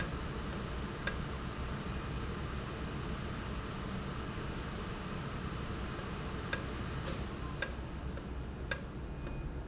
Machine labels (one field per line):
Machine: valve